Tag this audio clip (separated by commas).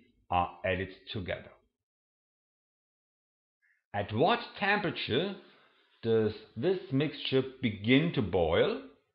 Speech